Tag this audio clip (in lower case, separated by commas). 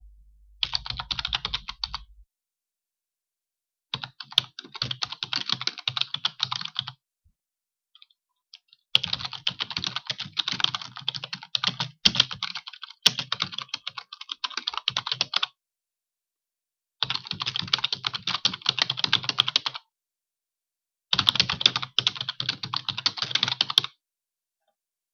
typing, domestic sounds